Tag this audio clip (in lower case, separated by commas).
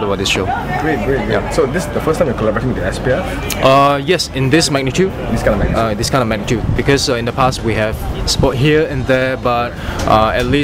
speech